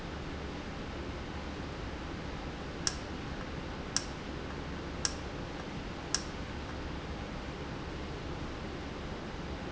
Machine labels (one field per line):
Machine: valve